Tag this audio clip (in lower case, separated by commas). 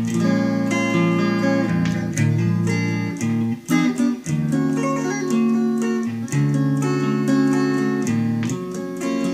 steel guitar, music